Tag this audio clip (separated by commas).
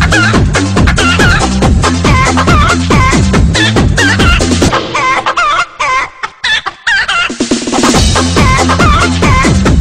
Music